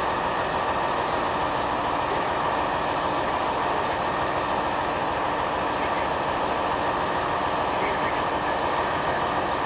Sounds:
speech

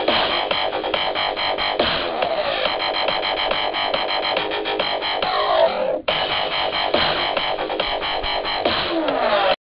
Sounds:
music, dubstep

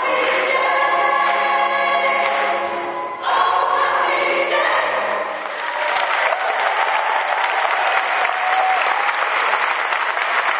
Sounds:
music, inside a large room or hall, applause, singing, choir

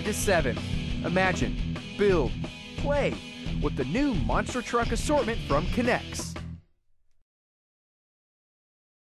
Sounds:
music, speech

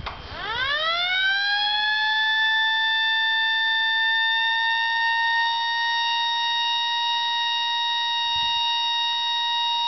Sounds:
siren

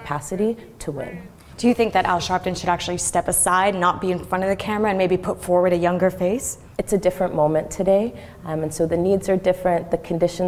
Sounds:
woman speaking

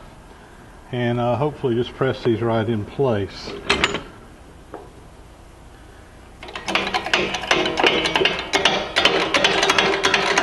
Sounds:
tools

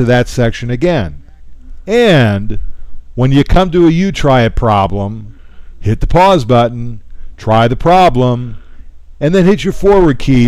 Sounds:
speech

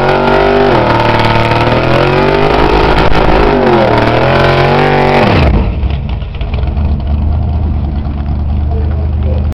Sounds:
accelerating, vehicle, speech, motor vehicle (road), car, car passing by

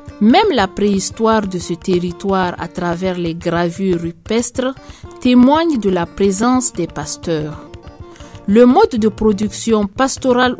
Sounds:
speech, music

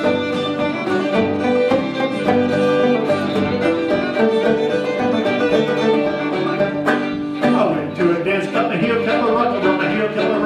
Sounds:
pizzicato, violin, bowed string instrument

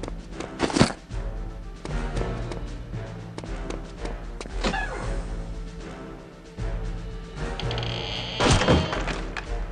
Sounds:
thud, music

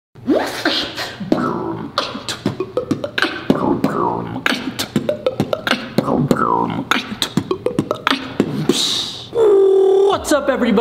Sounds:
beat boxing

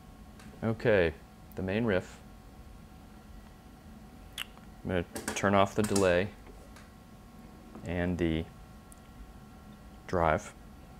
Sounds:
speech

